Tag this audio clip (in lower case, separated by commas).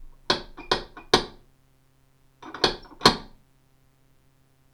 home sounds, knock, door